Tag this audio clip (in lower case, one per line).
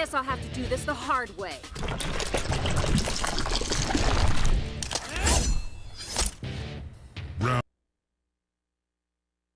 speech
slosh
music